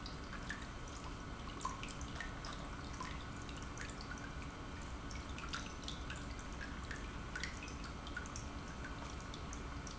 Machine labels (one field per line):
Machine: pump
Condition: normal